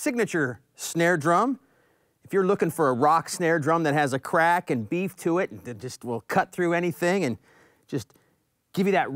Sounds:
speech

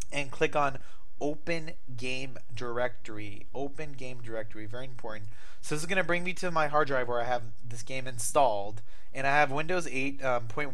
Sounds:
speech

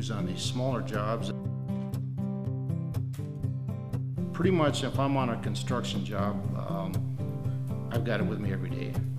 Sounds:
music, speech

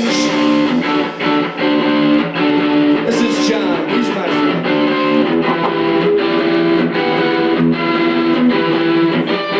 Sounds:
music, tapping (guitar technique), speech, electric guitar

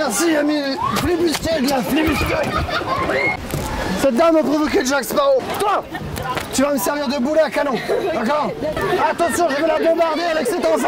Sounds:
speech

